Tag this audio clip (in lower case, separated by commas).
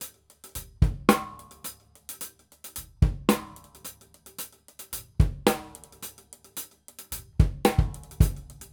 drum, musical instrument, drum kit, music, percussion